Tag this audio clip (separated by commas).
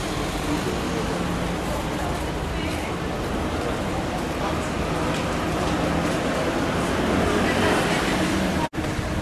Vehicle, Speech